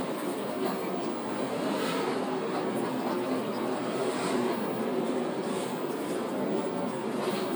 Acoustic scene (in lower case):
bus